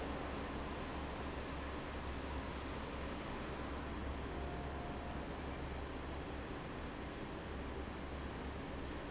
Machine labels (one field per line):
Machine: fan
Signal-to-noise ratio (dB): 0 dB